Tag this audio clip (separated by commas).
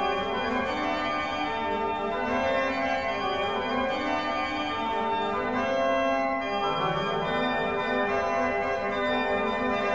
Musical instrument, Keyboard (musical), Music